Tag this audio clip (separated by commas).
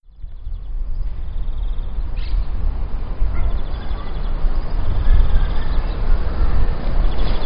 Wild animals, Animal, Bird